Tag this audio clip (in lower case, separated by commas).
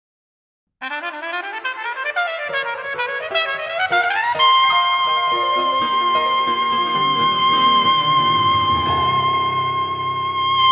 trumpet, playing trumpet, brass instrument